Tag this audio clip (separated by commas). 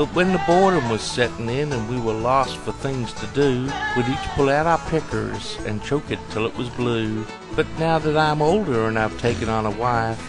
Music, Speech